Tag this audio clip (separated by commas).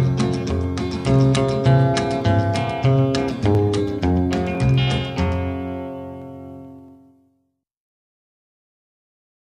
Music, Plucked string instrument